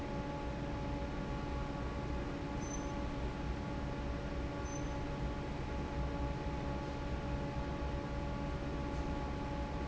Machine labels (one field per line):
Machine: fan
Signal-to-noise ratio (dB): -6 dB